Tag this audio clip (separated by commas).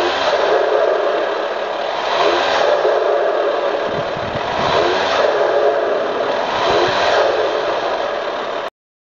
Idling, Engine, Accelerating, Medium engine (mid frequency)